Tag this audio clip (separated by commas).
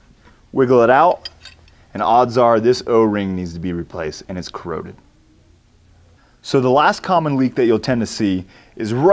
Speech